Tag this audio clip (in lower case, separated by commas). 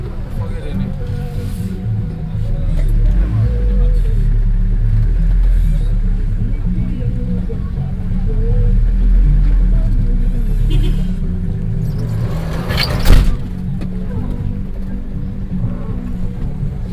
vehicle